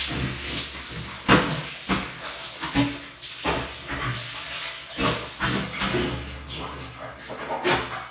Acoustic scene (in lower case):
restroom